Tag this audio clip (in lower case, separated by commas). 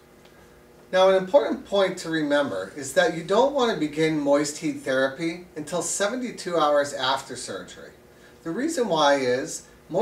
speech